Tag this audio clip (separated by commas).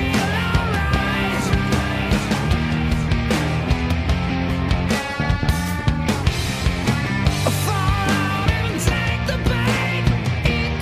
Bass guitar, Music